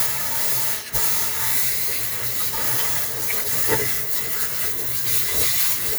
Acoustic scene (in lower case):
kitchen